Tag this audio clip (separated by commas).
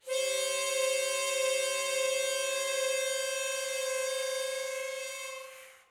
Music, Harmonica, Musical instrument